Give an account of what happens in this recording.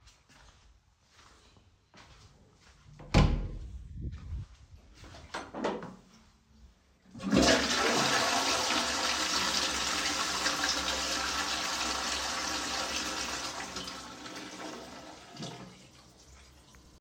I walked to the bathroom door, opened it, and flushed the toilet.